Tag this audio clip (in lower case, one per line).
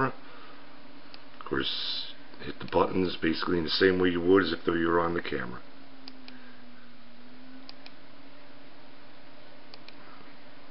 speech